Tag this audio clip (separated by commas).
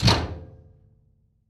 Domestic sounds, Slam, Door, Tools